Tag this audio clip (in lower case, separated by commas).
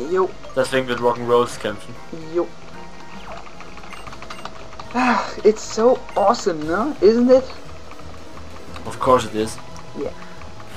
speech